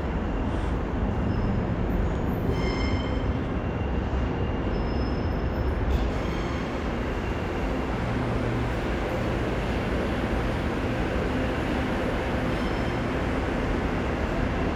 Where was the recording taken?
in a subway station